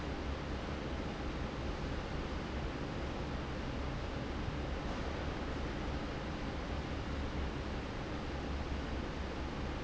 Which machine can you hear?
fan